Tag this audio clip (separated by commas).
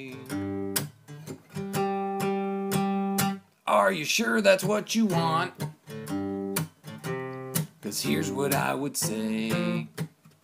Speech, Music